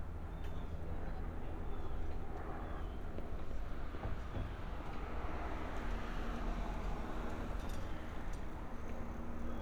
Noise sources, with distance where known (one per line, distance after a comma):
engine of unclear size